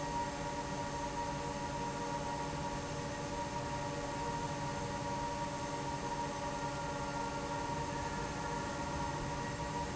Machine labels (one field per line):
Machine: fan